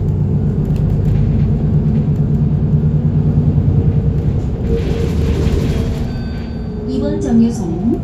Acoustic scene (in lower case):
bus